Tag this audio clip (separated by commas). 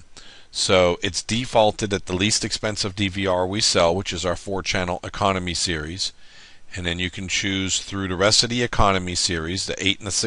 Speech